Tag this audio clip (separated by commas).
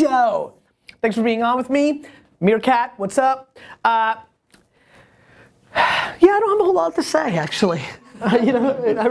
Speech